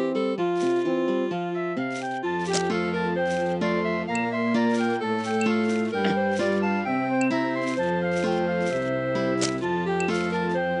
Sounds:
Music

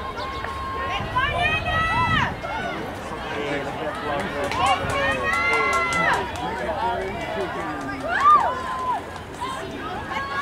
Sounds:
outside, urban or man-made, Speech

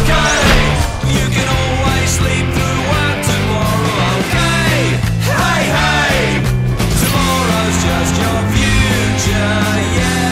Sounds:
Music, Grunge

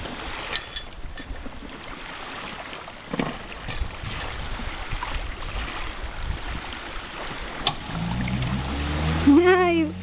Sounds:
Motorboat, Speech, Boat, Vehicle

